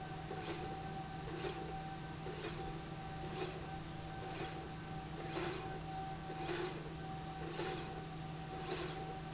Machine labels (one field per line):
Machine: slide rail